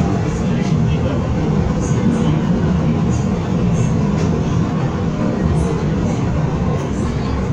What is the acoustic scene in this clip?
subway train